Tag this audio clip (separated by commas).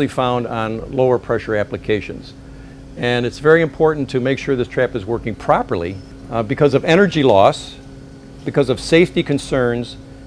Speech